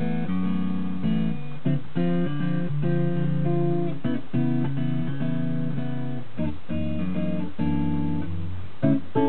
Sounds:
guitar
acoustic guitar
musical instrument
plucked string instrument
music

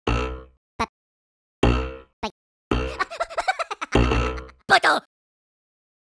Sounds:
speech

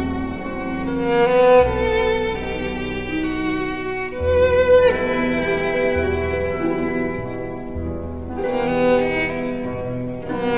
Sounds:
bowed string instrument
music

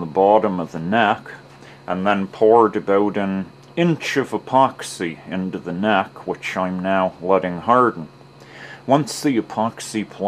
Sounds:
speech

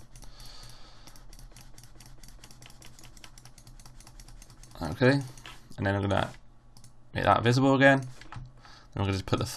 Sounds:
speech

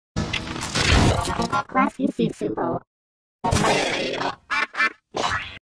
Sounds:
speech

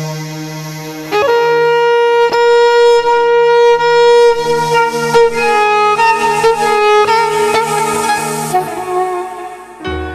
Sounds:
musical instrument
music
fiddle

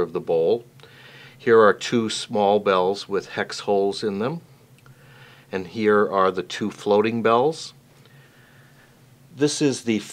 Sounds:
speech

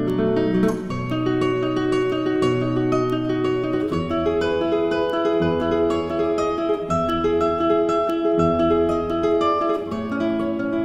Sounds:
guitar
music
strum
plucked string instrument
acoustic guitar
musical instrument

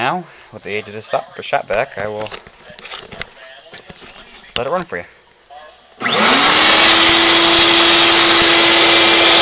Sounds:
speech

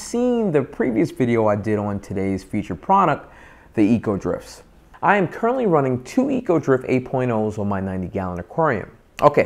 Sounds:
speech

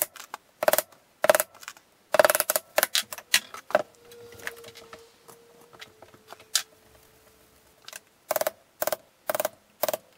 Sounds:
wood

